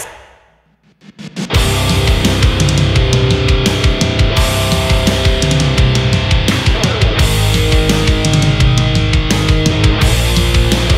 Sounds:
music, heavy metal

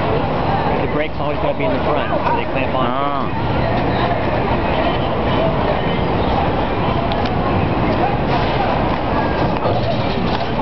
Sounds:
speech

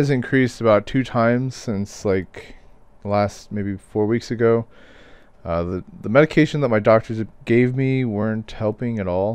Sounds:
speech

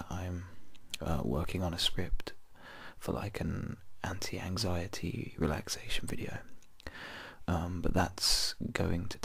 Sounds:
whispering, speech

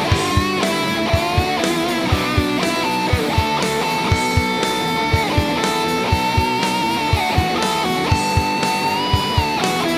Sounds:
musical instrument, music

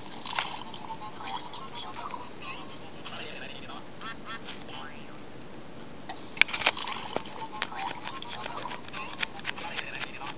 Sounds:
speech, music

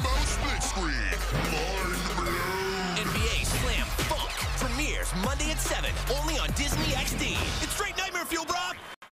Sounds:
speech, music

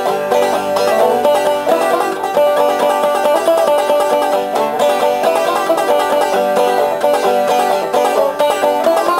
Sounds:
music, banjo, playing banjo

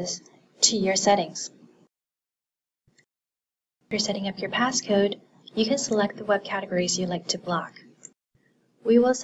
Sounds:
speech, inside a small room

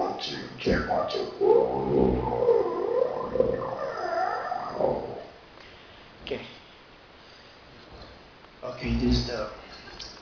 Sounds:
speech

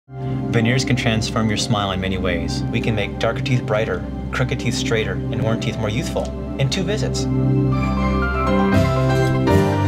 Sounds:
speech, music, new-age music

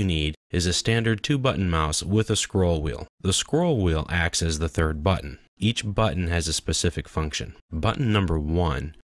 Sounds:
speech

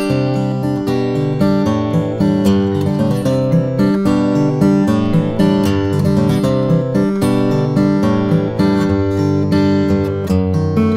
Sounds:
strum, acoustic guitar, musical instrument, music, plucked string instrument, guitar

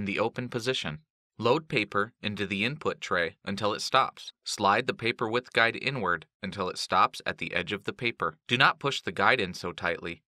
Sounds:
speech

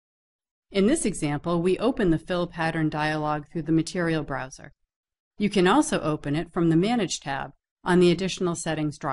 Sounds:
speech

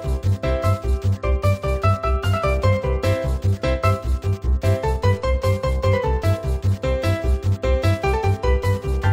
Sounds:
music

